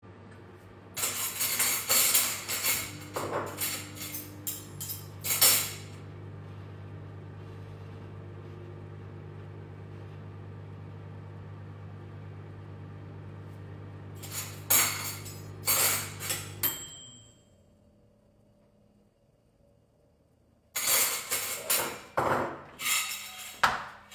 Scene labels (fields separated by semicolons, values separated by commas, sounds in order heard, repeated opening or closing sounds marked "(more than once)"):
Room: kitchen; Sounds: microwave, cutlery and dishes